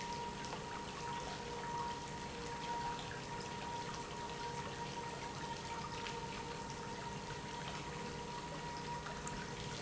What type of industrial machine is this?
pump